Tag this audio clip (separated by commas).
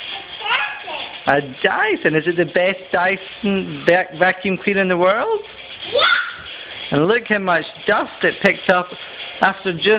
kid speaking